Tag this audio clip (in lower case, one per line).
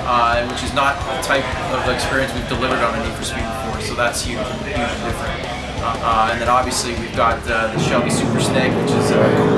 music
speech